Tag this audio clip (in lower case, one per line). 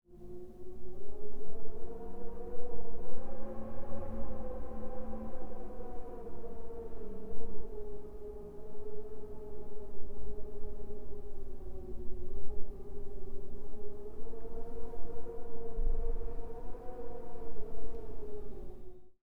wind